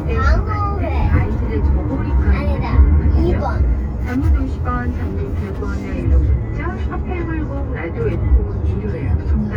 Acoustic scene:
car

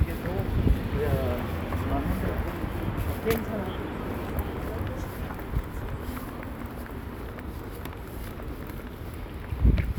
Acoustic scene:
residential area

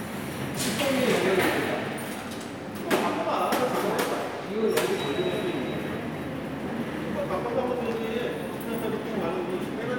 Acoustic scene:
subway station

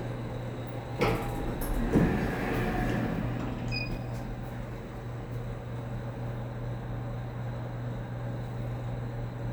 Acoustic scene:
elevator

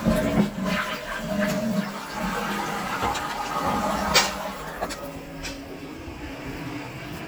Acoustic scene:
restroom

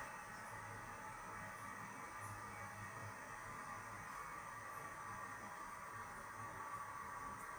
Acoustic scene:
restroom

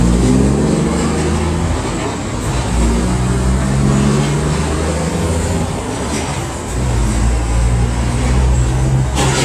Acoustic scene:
street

